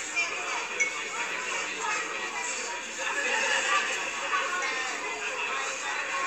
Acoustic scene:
crowded indoor space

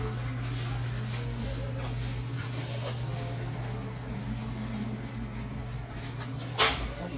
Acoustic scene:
cafe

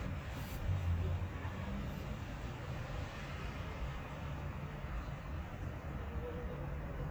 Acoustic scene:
residential area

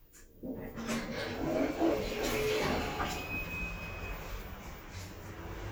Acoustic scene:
elevator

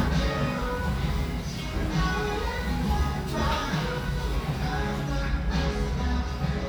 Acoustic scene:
restaurant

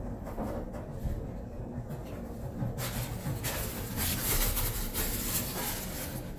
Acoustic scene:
elevator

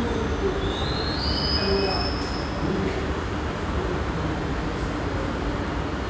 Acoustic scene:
subway station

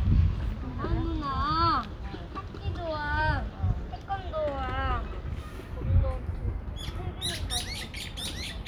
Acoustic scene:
residential area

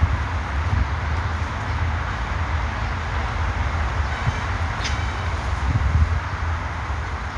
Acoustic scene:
park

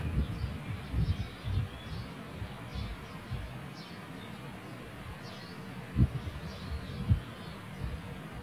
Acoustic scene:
park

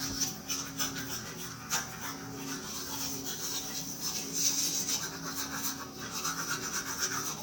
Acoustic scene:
restroom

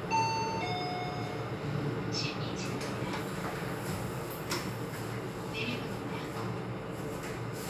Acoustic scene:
elevator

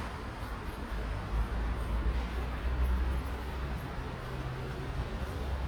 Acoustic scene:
residential area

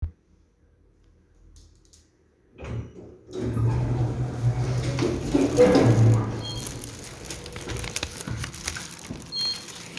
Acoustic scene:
elevator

